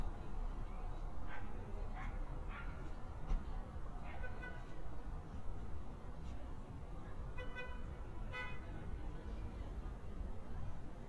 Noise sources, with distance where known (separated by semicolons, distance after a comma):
car horn